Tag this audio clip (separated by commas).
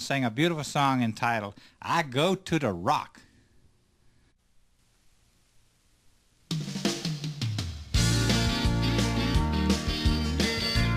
Speech, Music